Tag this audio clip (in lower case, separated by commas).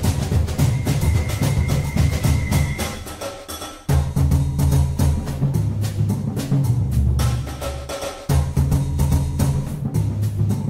music, inside a large room or hall